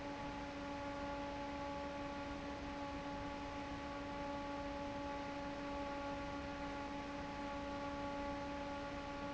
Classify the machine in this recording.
fan